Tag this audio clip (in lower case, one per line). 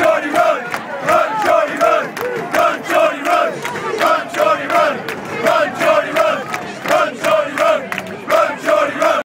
speech